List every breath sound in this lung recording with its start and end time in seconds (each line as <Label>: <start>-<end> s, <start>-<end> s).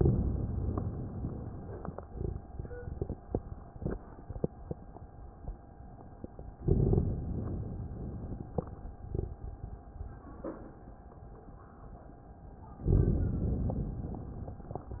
Inhalation: 0.00-1.98 s, 6.62-8.46 s, 12.90-14.74 s